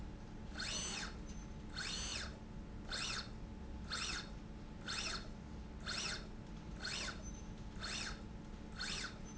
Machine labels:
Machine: slide rail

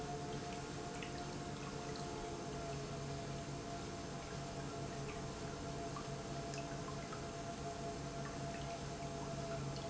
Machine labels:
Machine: pump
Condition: normal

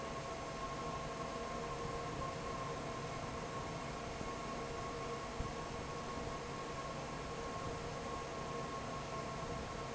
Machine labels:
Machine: fan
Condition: normal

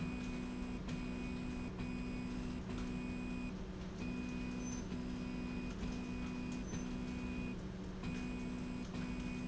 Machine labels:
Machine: slide rail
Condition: normal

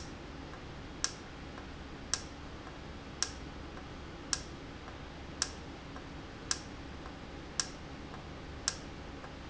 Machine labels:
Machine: valve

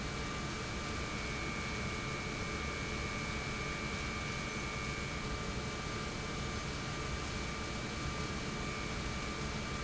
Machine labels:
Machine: pump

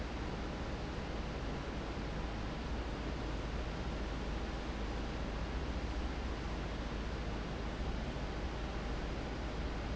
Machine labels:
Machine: fan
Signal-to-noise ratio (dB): -6 dB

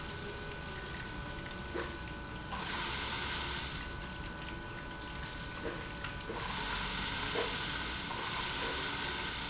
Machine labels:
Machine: pump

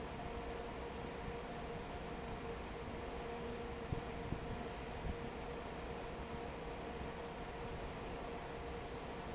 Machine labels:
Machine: fan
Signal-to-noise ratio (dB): 6 dB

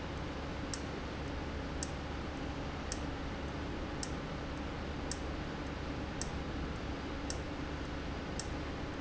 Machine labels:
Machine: valve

